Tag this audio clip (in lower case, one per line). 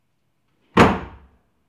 slam
domestic sounds
door